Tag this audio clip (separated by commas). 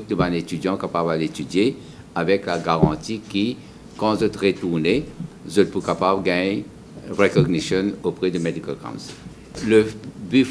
Speech